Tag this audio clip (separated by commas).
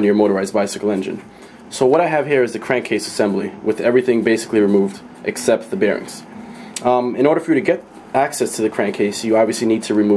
Speech